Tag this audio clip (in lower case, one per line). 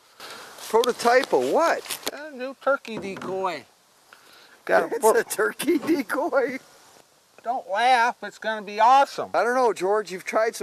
speech